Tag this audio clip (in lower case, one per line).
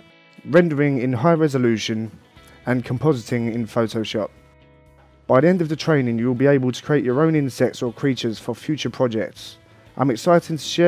music
speech